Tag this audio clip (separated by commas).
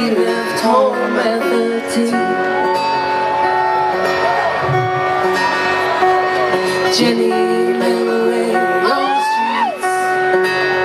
Tender music, Music